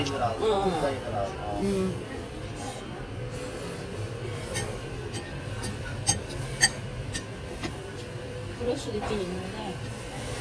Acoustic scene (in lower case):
restaurant